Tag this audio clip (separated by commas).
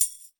Music, Percussion, Tambourine, Musical instrument